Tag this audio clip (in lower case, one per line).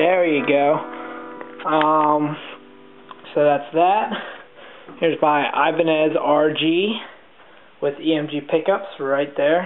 acoustic guitar
musical instrument
guitar
strum
plucked string instrument
speech
music